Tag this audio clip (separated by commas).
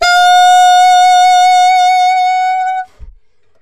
Musical instrument, Music, woodwind instrument